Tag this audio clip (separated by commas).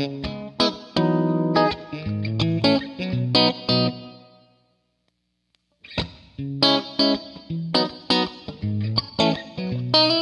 New-age music, Music